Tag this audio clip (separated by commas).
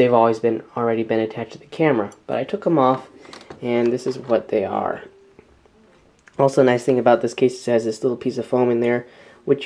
Speech